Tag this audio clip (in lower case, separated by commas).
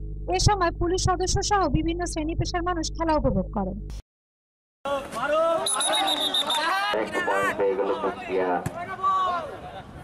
playing volleyball